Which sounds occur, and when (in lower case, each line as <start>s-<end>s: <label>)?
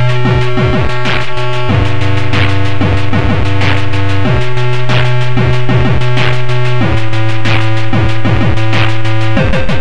0.0s-9.8s: music